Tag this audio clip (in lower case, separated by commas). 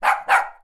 bark, animal, dog, pets